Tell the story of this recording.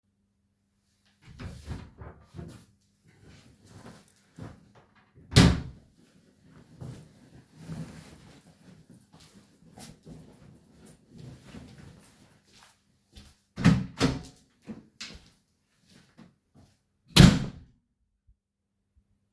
I have opened a wardrobe, took out my hoodie, closed wardrobe and put my hoodie on. Then I went to the door, opened the door, walcked out and closed the door.